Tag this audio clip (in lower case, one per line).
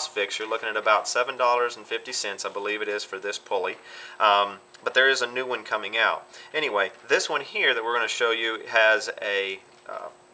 speech